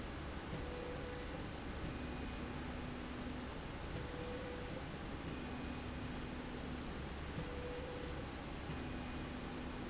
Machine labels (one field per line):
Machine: slide rail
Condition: normal